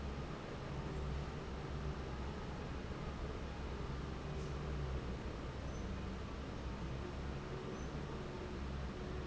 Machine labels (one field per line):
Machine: fan